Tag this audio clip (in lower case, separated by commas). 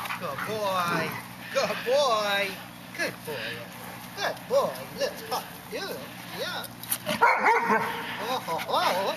speech, yip